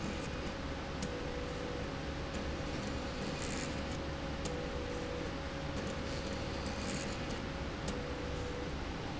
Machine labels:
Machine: slide rail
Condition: abnormal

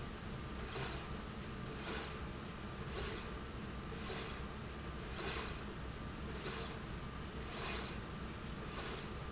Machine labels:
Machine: slide rail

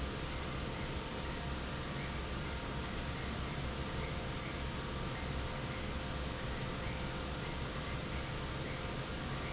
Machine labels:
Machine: fan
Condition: normal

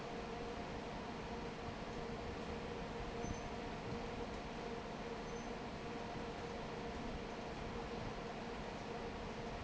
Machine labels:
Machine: fan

